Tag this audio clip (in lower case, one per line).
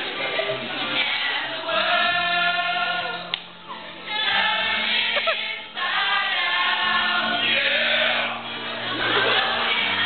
choir
inside a large room or hall
music